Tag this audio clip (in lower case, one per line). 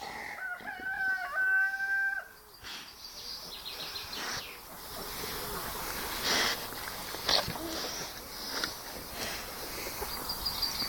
bird vocalization
rooster
fowl
chirp
bird
cluck
cock-a-doodle-doo